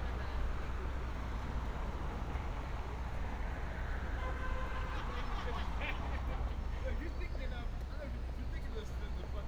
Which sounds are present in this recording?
person or small group talking